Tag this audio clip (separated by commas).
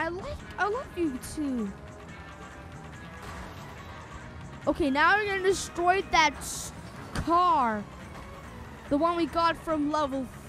Speech, Music